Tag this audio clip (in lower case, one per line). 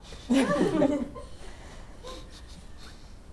laughter
human voice